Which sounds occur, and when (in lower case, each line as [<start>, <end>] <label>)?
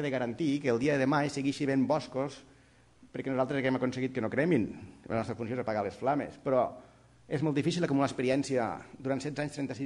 [0.00, 2.40] male speech
[0.00, 9.85] background noise
[2.46, 2.89] breathing
[3.06, 4.65] male speech
[4.67, 5.05] breathing
[5.08, 6.71] male speech
[6.75, 7.24] breathing
[7.26, 8.79] male speech
[8.79, 9.01] breathing
[8.94, 9.85] male speech